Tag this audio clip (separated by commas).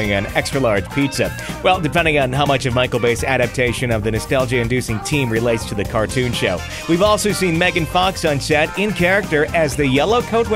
Music, Speech